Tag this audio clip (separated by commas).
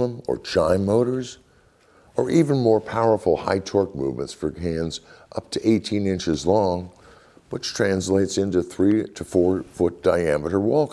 Speech